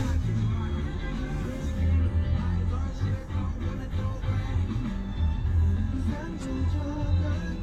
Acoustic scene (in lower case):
car